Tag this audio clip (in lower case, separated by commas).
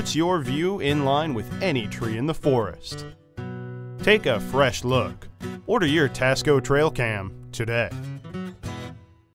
speech, music